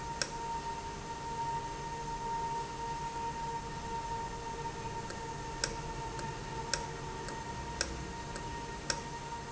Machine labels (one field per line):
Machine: valve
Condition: normal